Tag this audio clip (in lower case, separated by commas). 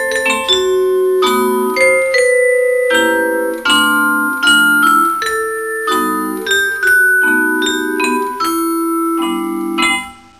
playing vibraphone